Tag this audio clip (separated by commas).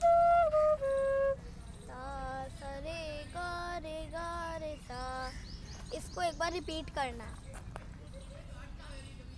Flute, Music, Speech